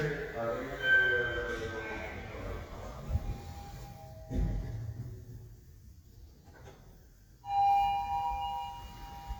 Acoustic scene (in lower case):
elevator